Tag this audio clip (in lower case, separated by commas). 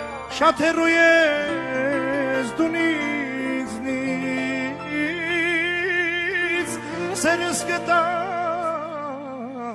tender music, music